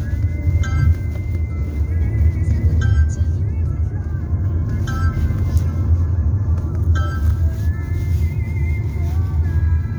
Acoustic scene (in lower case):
car